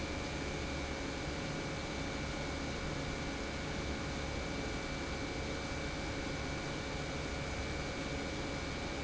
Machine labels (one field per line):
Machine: pump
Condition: normal